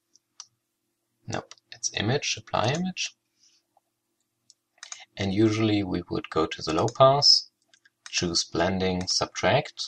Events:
0.0s-9.8s: background noise
0.1s-0.2s: computer keyboard
0.4s-0.5s: computer keyboard
1.2s-1.4s: man speaking
1.3s-1.6s: computer keyboard
1.7s-2.0s: computer keyboard
1.8s-3.1s: man speaking
2.4s-2.8s: computer keyboard
3.4s-3.7s: sniff
4.5s-4.6s: computer keyboard
4.8s-5.1s: computer keyboard
5.2s-7.5s: man speaking
6.2s-7.0s: computer keyboard
7.6s-7.9s: computer keyboard
8.0s-8.3s: computer keyboard
8.1s-9.8s: man speaking
9.0s-9.3s: computer keyboard
9.7s-9.8s: computer keyboard

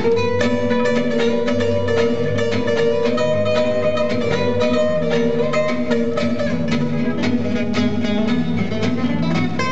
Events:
0.0s-9.7s: music

